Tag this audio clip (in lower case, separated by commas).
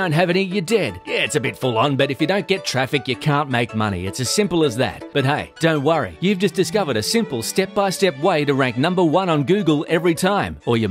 music, speech